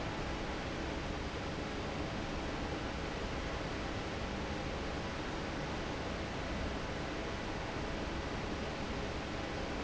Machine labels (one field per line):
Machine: fan